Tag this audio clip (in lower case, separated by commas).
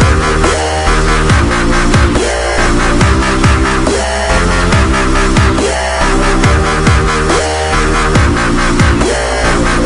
dubstep, music